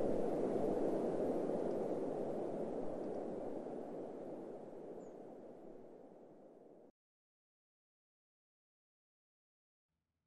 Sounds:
wind rustling leaves

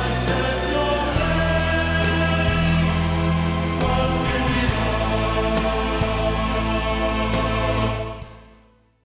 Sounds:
Music

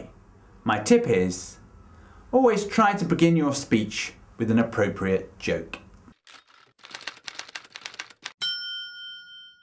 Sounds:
Speech, man speaking, Narration

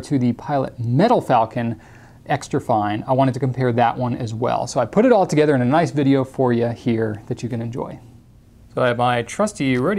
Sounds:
Speech

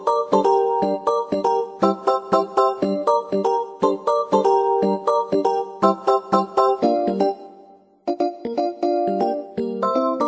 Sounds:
Piano, Electric piano, Music

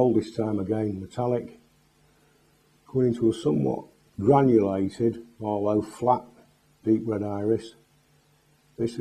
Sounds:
Speech

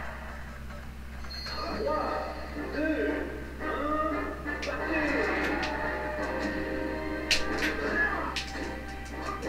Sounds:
Music, Speech

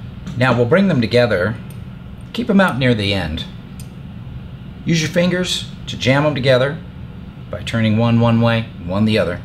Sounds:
Speech

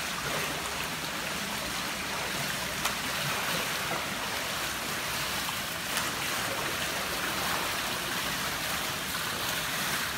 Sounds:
swimming

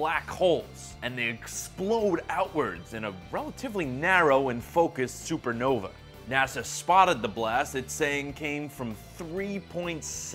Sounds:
Music, Speech

